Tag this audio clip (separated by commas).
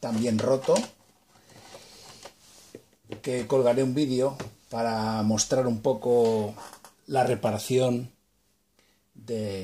Speech